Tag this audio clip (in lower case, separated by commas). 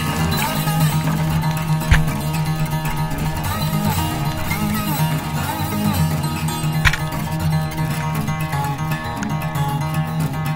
zither